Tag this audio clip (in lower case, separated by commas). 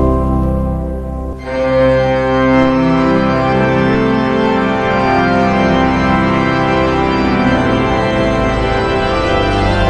music